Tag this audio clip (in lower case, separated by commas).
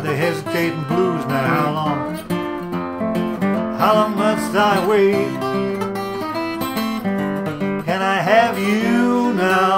musical instrument, acoustic guitar, music, guitar